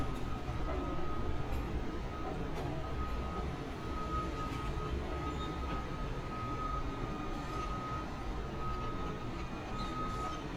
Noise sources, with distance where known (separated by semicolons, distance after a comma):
reverse beeper, far